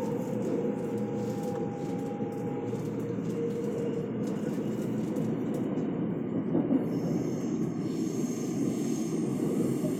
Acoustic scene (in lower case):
subway train